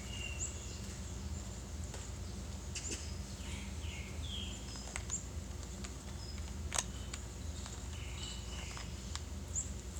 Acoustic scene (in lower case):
park